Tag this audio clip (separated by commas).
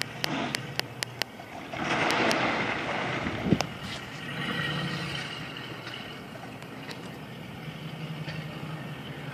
Vehicle, speedboat